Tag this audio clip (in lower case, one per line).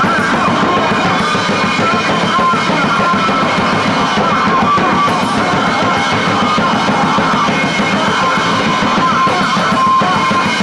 music